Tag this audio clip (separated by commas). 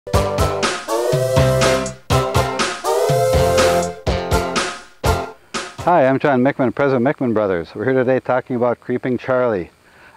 Music, Speech